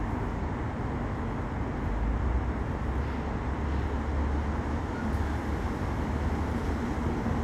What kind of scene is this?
residential area